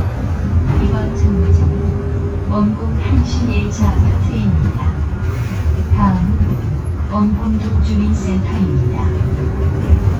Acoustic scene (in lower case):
bus